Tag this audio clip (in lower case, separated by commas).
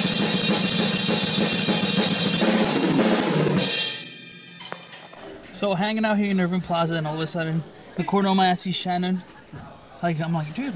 speech, music, jazz